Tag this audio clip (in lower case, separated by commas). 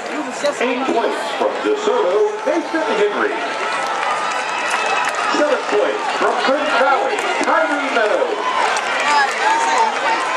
inside a public space, speech